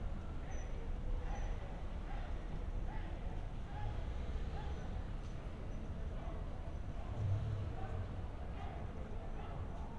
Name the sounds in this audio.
unidentified human voice